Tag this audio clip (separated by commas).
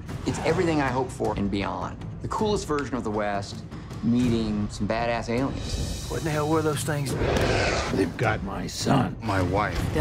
Speech, Music